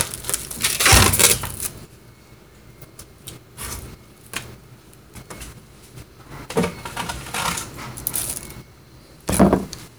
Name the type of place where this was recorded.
kitchen